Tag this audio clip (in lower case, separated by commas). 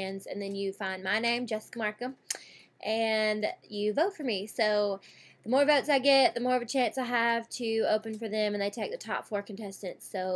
speech